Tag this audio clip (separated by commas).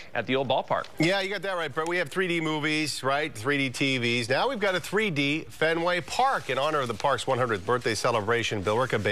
Speech